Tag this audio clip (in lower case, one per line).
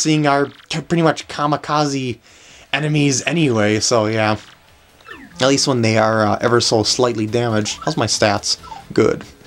speech